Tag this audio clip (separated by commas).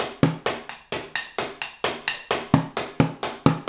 Drum, Musical instrument, Music, Percussion, Drum kit